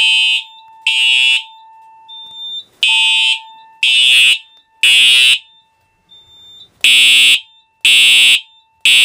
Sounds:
Fire alarm

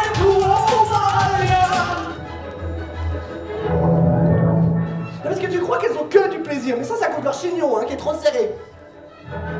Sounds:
Music, Speech

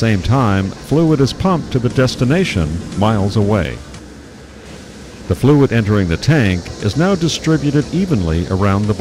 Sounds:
Music, Speech

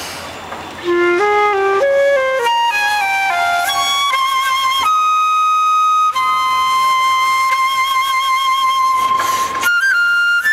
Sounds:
Flute, Music

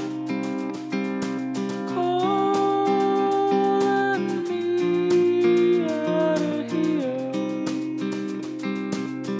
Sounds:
Sad music, Music, Folk music

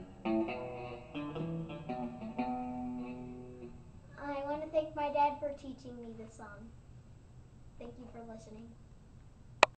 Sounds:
Electric guitar, Musical instrument, Music, Plucked string instrument, Guitar, Speech

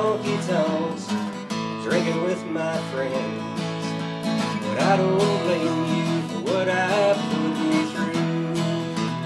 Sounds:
Music, Plucked string instrument, Acoustic guitar, playing acoustic guitar, Musical instrument, Guitar

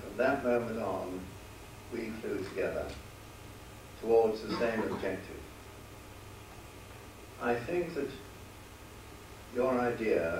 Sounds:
man speaking, Speech, Narration

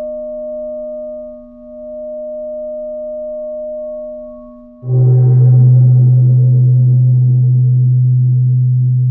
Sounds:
Singing bowl, Music

